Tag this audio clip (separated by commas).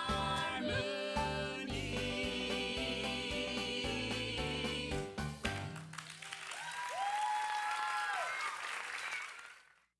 Music